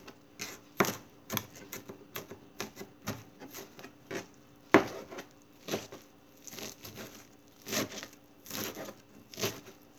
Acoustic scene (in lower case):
kitchen